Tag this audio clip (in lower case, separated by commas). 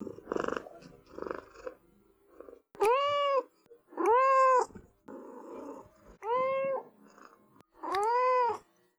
meow, cat, purr, pets, animal